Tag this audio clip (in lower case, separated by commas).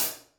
percussion, musical instrument, cymbal, hi-hat, music